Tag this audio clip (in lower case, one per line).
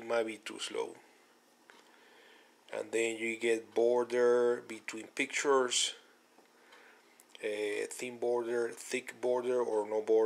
inside a small room
speech